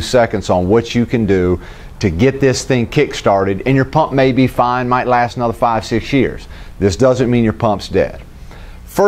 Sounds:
speech

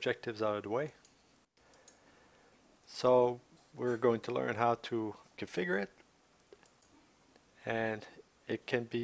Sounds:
speech

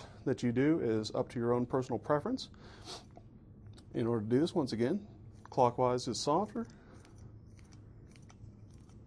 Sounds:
speech, inside a large room or hall

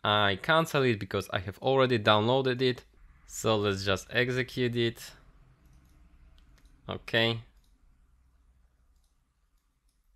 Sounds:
inside a small room, speech

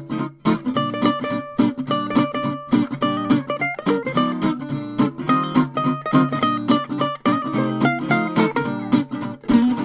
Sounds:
music

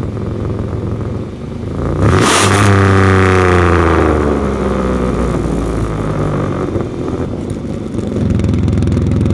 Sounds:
vehicle, revving, car

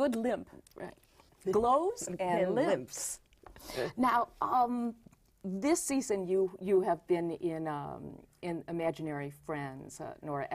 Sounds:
speech, female speech

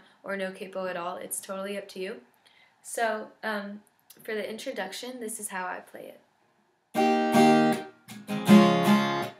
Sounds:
strum, music, speech, acoustic guitar

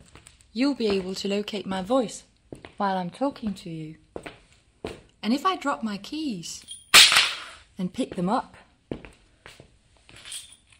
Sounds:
speech

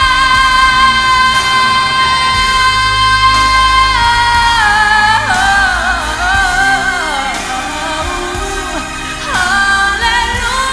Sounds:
music, female singing

